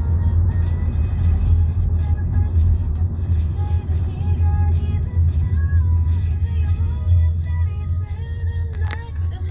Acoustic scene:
car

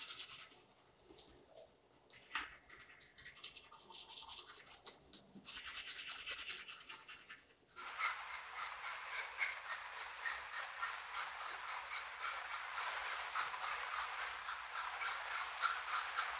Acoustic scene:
restroom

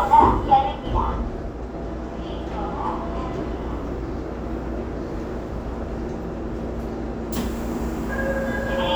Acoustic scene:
subway train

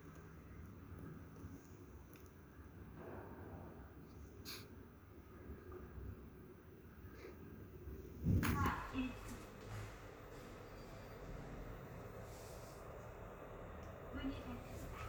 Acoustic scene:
elevator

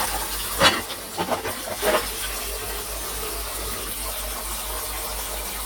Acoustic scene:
kitchen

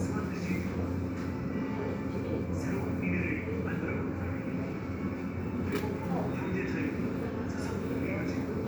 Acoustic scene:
subway station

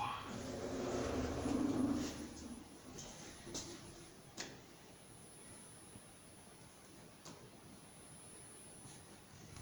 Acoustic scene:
elevator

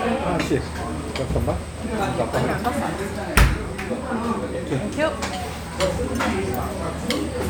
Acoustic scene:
restaurant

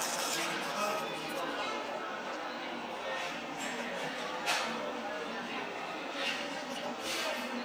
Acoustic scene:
cafe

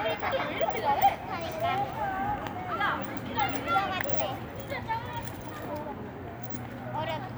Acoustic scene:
residential area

